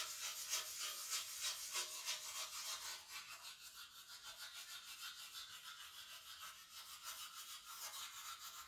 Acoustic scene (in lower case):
restroom